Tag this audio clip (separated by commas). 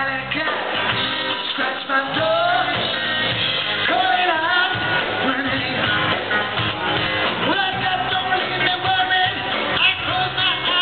Music, inside a large room or hall, Singing